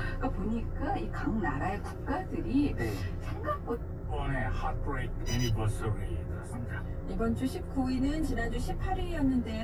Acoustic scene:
car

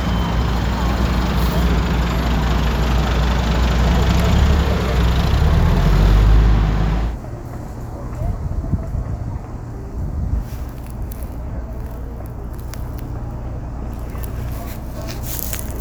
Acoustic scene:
street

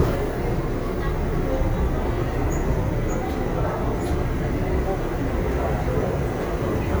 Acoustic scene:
crowded indoor space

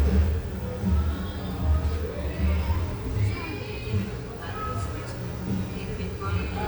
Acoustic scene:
cafe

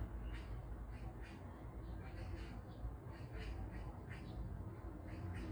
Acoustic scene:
park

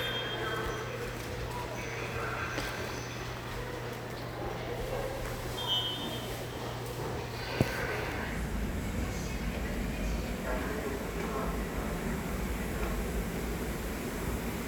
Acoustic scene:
subway station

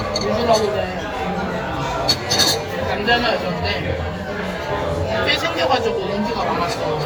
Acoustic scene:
crowded indoor space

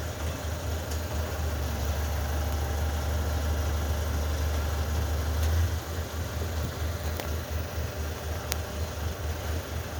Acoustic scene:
residential area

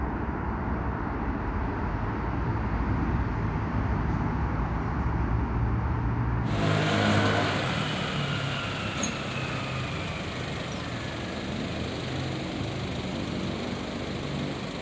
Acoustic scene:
street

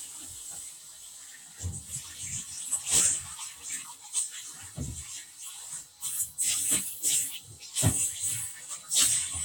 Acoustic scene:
kitchen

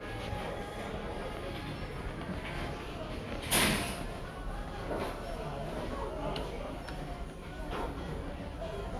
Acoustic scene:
crowded indoor space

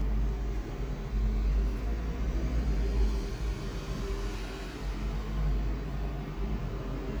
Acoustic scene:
street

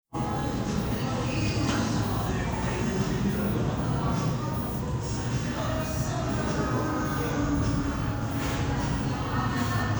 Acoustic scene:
cafe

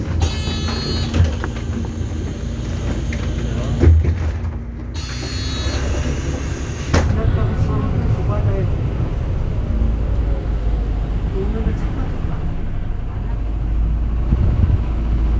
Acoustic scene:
bus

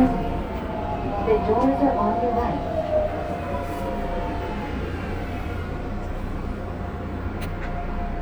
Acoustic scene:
subway train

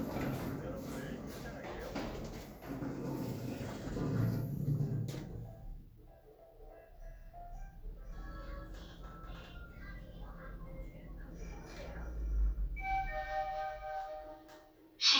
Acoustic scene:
elevator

